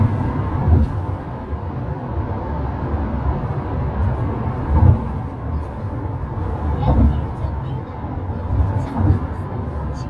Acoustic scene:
car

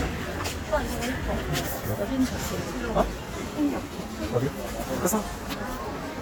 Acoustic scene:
crowded indoor space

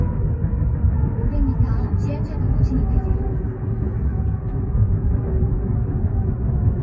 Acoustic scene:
car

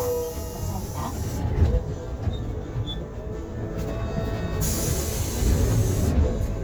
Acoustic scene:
bus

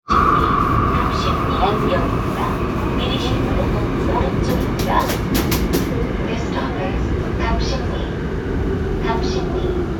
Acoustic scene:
subway train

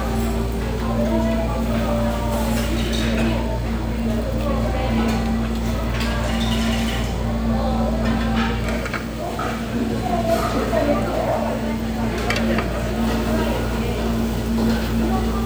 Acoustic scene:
restaurant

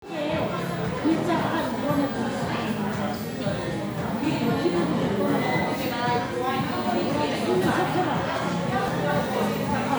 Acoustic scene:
crowded indoor space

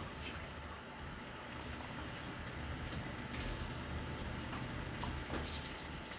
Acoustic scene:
kitchen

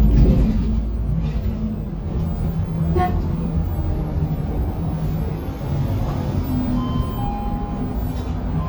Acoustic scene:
bus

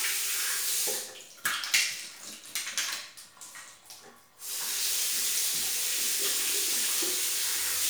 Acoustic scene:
restroom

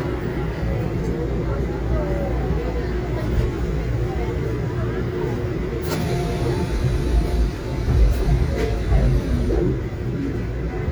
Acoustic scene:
subway train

